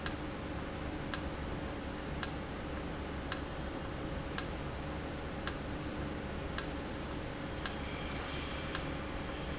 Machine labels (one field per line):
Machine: valve